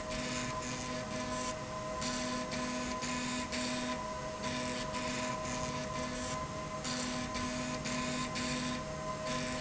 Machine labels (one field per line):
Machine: slide rail